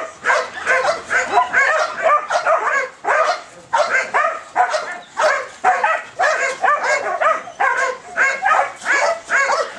A number of dogs bark, yip and yelp